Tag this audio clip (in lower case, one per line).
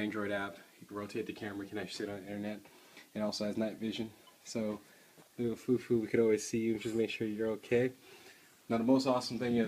speech